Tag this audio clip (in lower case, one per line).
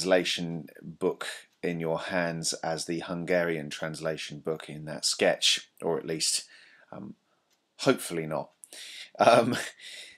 speech